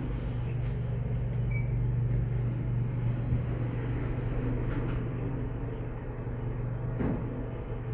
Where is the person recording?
in an elevator